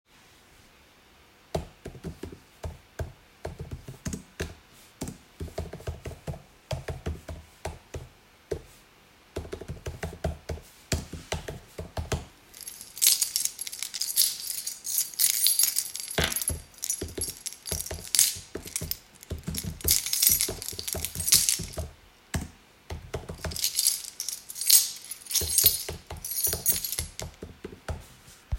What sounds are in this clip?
keyboard typing, keys